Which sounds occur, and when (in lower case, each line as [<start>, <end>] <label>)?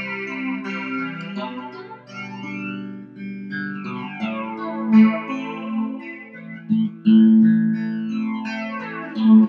[0.00, 9.45] music
[1.16, 1.23] tick